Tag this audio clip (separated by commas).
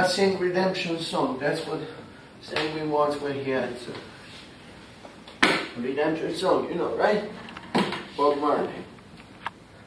Speech